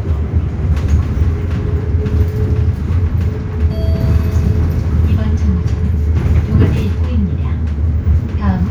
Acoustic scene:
bus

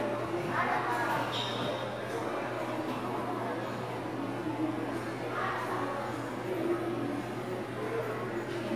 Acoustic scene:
subway station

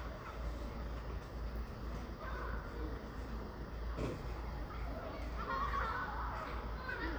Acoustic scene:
residential area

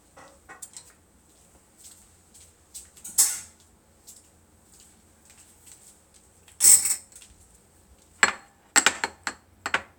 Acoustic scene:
kitchen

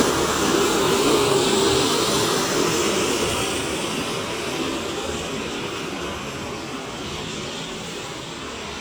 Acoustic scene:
street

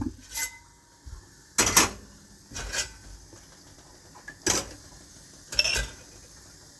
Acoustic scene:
kitchen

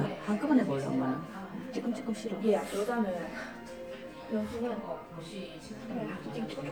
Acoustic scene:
crowded indoor space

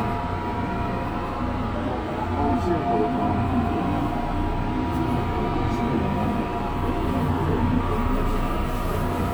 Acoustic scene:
subway train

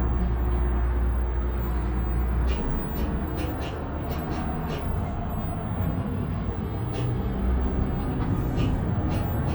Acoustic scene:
bus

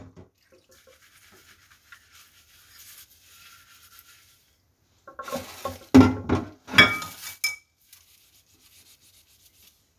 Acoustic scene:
kitchen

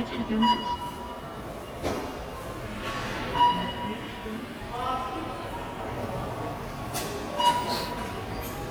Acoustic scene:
subway station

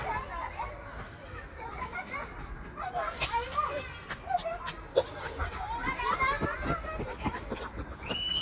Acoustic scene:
park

